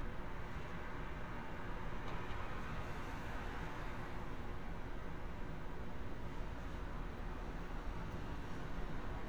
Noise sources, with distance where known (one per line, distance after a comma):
medium-sounding engine